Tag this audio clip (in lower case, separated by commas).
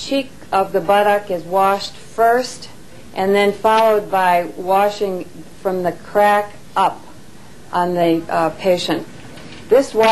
speech